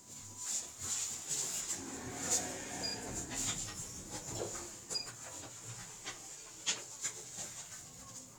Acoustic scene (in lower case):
elevator